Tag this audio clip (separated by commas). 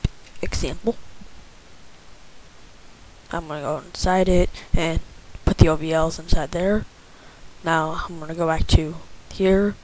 Speech